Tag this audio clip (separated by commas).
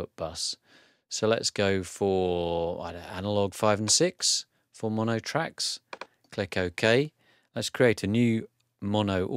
Speech